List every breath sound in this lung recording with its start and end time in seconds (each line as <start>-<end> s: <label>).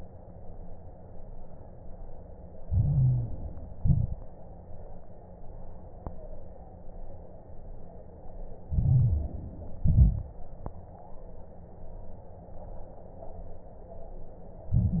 2.64-3.72 s: inhalation
2.64-3.72 s: crackles
3.78-4.32 s: exhalation
3.78-4.32 s: crackles
8.72-9.80 s: inhalation
8.72-9.80 s: crackles
9.79-10.36 s: exhalation
9.82-10.36 s: crackles
14.71-15.00 s: inhalation